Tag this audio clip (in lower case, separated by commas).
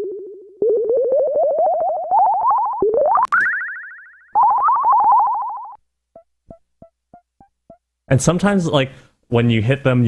music, speech